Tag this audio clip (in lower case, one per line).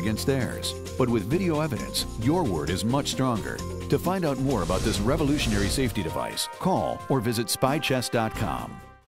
speech
music